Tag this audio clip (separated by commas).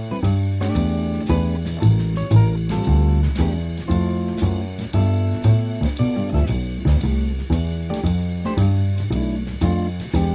playing double bass